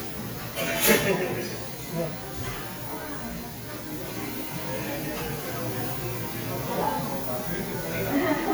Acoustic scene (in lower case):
cafe